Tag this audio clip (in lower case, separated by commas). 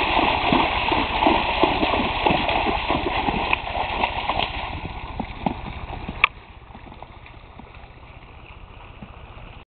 clip-clop, horse, horse clip-clop, animal